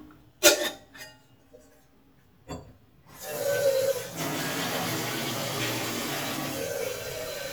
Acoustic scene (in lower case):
kitchen